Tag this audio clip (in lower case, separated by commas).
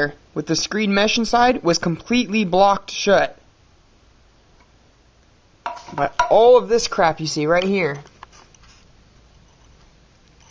speech, inside a small room